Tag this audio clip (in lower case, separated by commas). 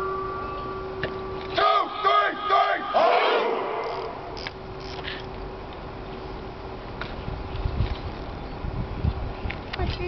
outside, urban or man-made, speech